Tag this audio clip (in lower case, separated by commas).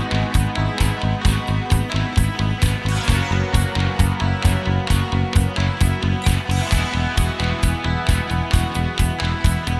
music